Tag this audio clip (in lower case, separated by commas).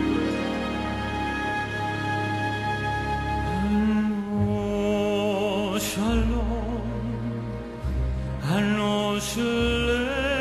male singing, music